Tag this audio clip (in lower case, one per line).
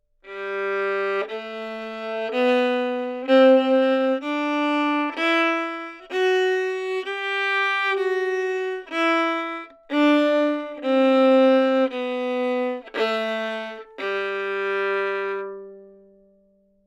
bowed string instrument
musical instrument
music